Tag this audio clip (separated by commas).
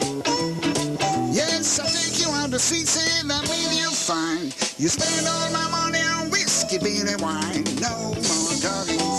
Music